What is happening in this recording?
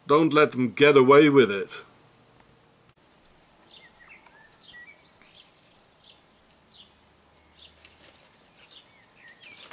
A man speaks a little and birds chirp softly